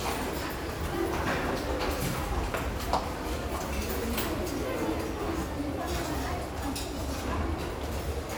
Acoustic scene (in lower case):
restaurant